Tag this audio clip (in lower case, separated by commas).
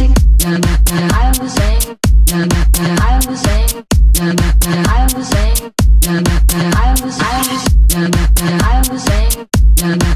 music